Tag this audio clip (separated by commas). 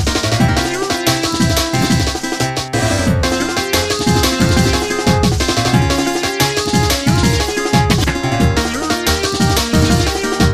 Music